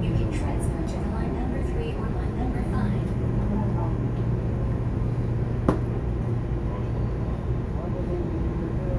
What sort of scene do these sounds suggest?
subway train